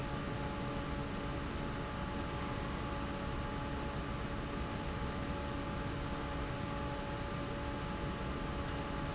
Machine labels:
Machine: fan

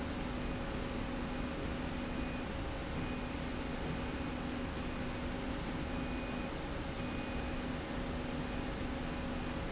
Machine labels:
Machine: slide rail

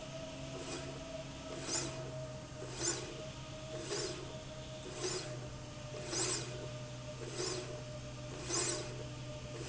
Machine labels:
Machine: slide rail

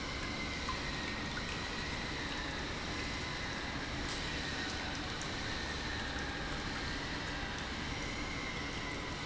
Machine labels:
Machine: pump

